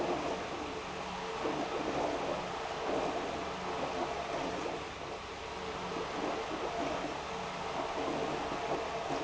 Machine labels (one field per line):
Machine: pump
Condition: abnormal